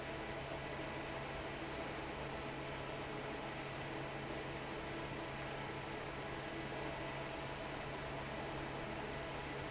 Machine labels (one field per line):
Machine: fan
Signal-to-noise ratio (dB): 6 dB